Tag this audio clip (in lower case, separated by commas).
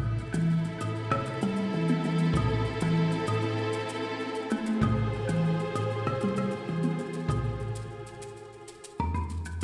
music